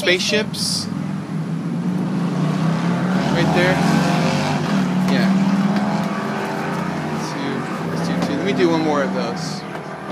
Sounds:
kid speaking, Race car, Speech

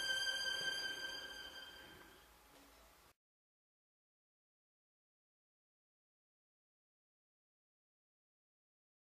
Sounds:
Music, Musical instrument, Violin

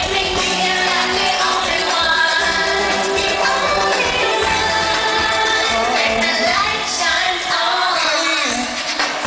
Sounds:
Music

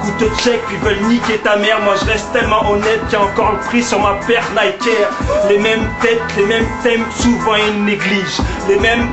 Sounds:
Speech, Music

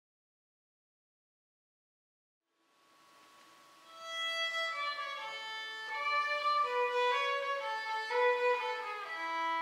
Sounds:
fiddle, Music

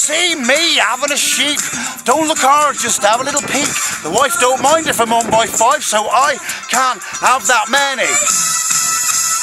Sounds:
Music, Speech

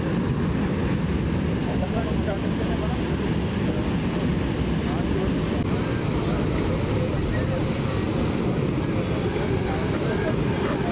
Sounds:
Bus, Vehicle, Speech

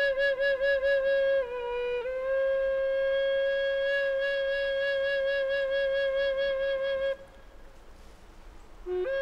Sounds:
Music

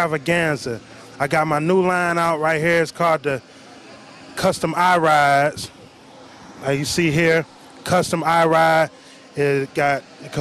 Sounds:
Speech, speech babble

